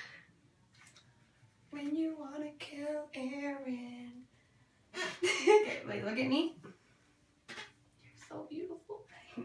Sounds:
Speech, Singing

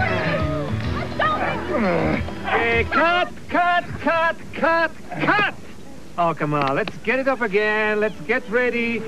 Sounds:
Music, Speech

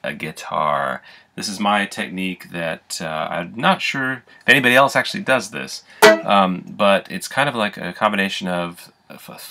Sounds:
Pizzicato

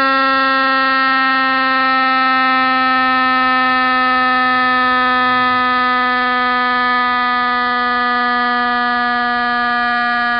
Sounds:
Siren

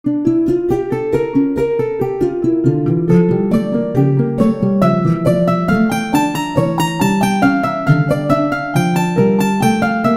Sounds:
Harp

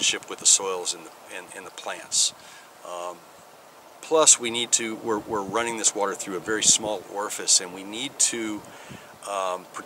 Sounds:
Speech

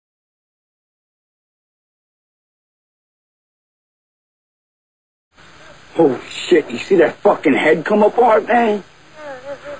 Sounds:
Speech

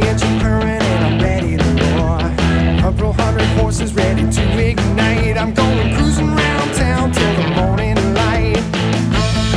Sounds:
Exciting music, Music

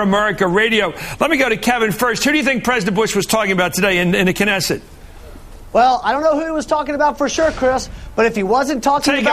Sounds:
Speech

